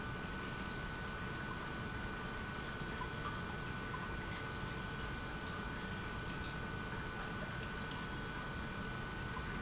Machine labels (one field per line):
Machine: pump